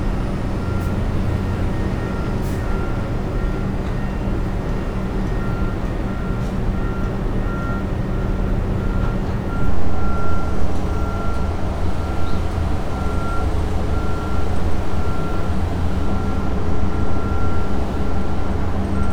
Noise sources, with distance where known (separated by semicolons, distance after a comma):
engine of unclear size, near; reverse beeper, near